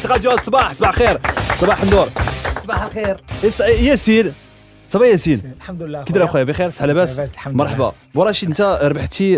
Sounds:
speech, music

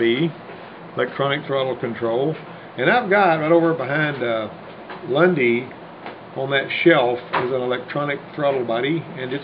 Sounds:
speech

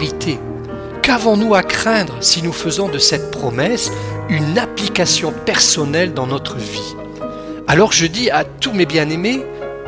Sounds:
music, speech

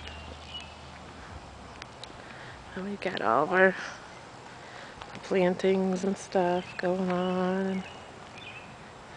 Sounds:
speech, outside, rural or natural

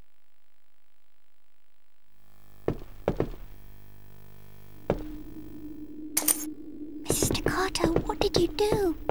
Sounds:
speech

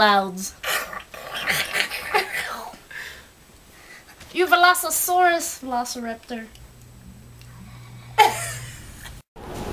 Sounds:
speech, inside a small room

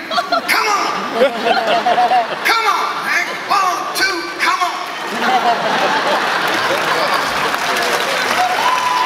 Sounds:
music, speech

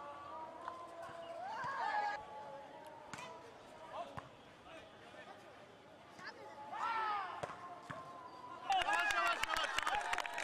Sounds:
playing volleyball

